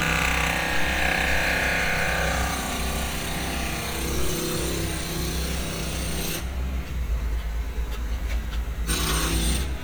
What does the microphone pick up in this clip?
jackhammer